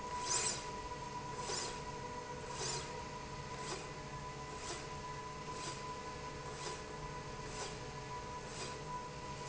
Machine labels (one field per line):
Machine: slide rail